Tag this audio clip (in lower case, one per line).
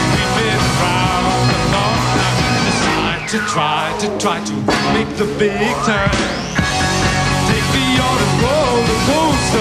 music